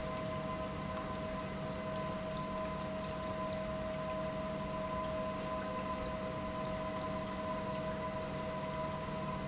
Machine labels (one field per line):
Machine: pump